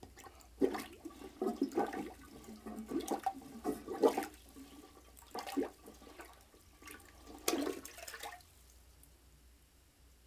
Toilet water gently swishing